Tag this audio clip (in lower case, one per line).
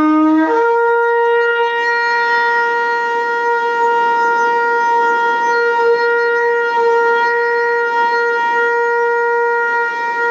shofar
woodwind instrument